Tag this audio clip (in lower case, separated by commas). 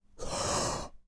respiratory sounds, breathing